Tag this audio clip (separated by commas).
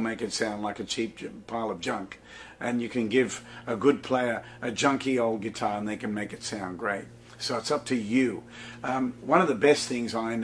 Speech